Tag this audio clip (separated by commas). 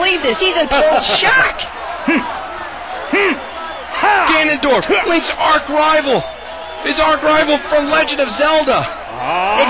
Speech